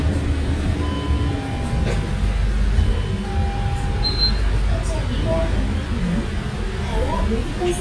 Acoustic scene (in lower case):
bus